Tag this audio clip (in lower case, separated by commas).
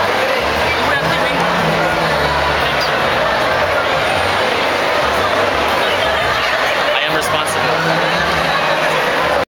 crowd, speech